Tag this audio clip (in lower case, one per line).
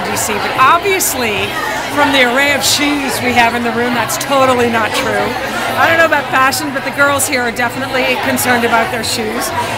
speech